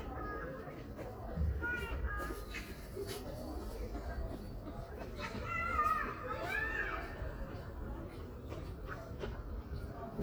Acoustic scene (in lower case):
residential area